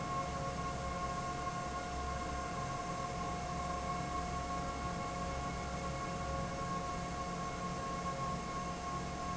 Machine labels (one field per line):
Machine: fan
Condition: normal